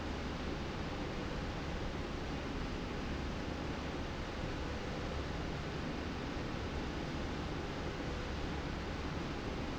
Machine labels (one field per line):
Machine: slide rail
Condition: normal